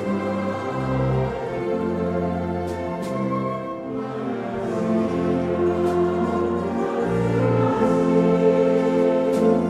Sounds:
orchestra

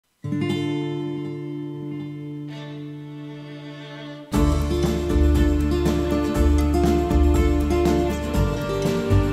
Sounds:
music
bowed string instrument

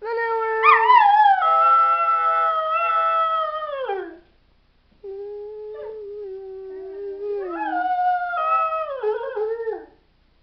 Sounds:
dog howling

